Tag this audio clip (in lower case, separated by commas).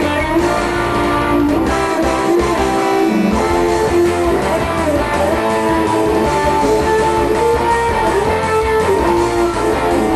music, plucked string instrument, acoustic guitar, electric guitar, musical instrument, strum, guitar